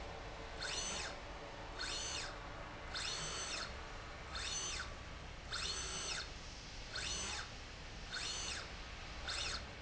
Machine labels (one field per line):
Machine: slide rail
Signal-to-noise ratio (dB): 6 dB